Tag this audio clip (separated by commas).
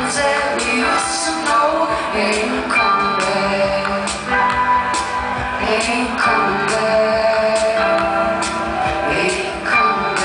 Music